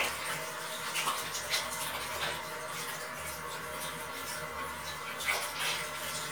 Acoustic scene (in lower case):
restroom